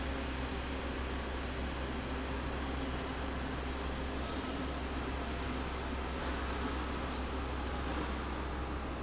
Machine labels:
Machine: fan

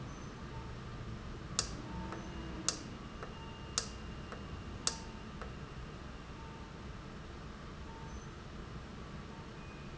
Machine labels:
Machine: valve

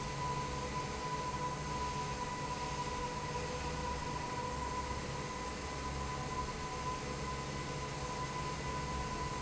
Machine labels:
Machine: fan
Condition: normal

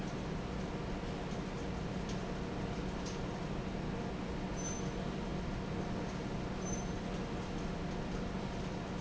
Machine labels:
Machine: fan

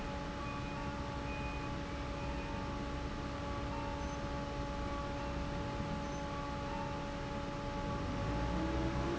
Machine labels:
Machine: fan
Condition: normal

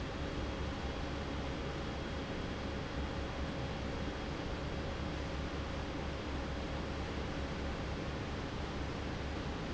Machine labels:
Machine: fan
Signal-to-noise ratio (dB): -6 dB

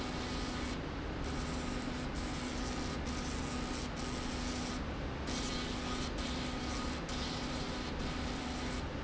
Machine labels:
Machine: slide rail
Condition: abnormal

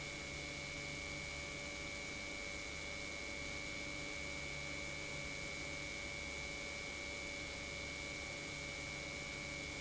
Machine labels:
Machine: pump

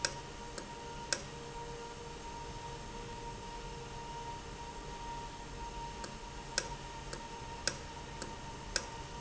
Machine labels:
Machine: valve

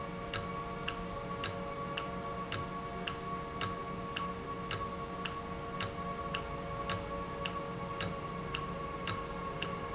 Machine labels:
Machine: valve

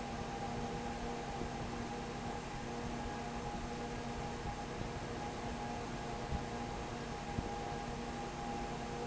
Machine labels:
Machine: fan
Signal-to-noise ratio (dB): 0 dB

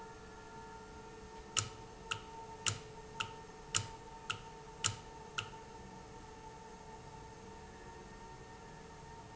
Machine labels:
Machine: valve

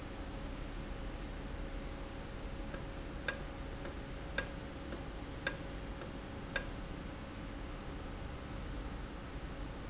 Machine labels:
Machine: valve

